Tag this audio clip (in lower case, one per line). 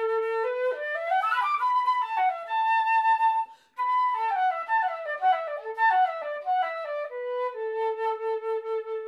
traditional music
music